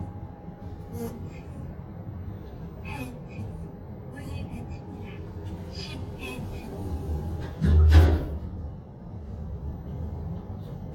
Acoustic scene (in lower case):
elevator